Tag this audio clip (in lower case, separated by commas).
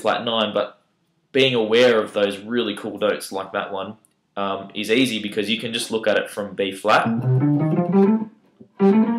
musical instrument, music, acoustic guitar, plucked string instrument, speech, tapping (guitar technique), guitar